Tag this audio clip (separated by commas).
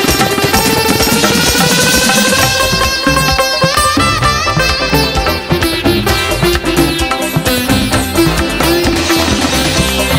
playing sitar